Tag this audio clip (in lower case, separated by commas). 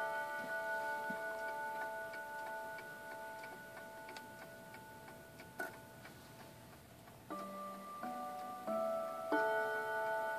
tick-tock